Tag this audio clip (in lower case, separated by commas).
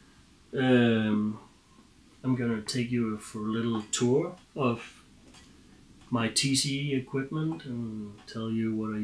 speech